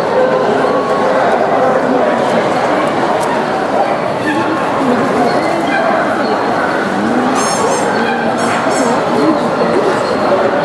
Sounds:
bow-wow

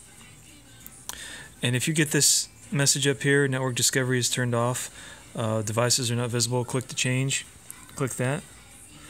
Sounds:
speech, music

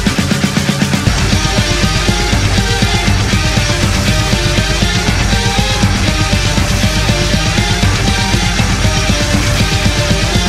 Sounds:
music, musical instrument, violin

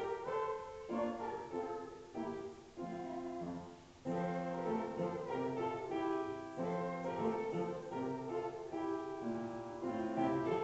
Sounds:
music, female singing

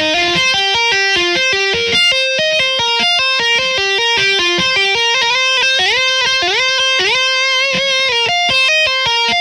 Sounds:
tapping guitar

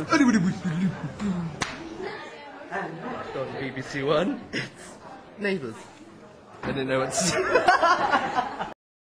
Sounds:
speech

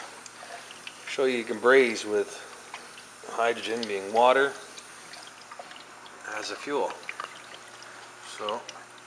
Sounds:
liquid, inside a small room, speech

